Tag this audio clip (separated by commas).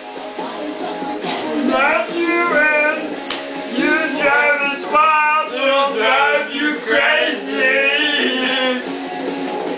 Rock and roll, Music